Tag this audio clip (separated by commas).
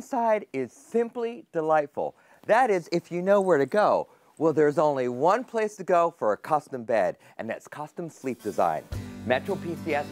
Speech, Music